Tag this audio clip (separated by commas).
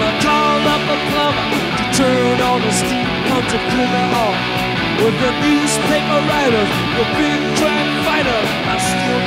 Music